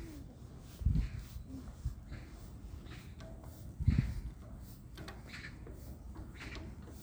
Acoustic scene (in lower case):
park